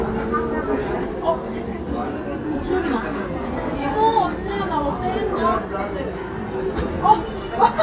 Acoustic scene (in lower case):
crowded indoor space